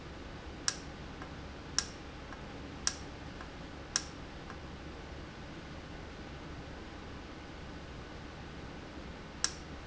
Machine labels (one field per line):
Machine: valve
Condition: normal